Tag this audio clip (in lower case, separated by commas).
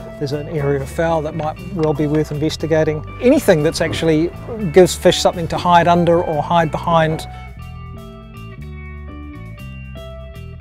music, speech